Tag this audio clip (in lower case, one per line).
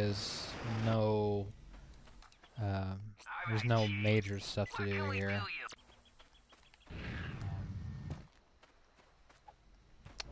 speech